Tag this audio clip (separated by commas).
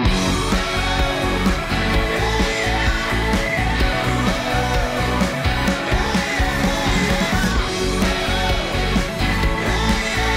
Techno, Electronic music, Music